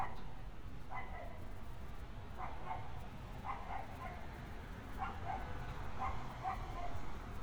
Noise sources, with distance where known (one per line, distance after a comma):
engine of unclear size, far
dog barking or whining, near